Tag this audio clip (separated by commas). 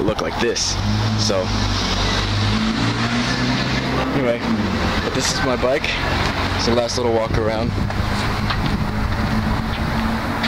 Vehicle, Speech